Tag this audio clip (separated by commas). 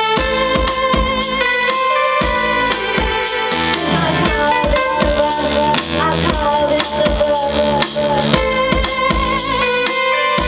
Music